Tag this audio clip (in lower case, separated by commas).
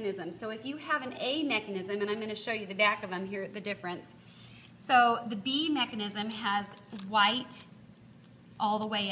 speech